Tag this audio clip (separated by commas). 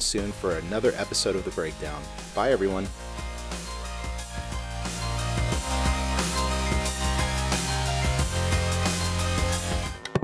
Speech, Music